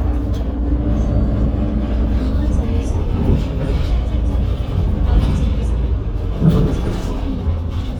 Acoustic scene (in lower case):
bus